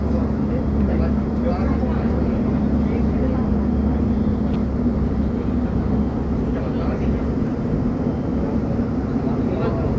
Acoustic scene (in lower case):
subway train